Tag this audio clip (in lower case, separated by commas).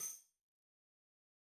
tambourine, musical instrument, music, percussion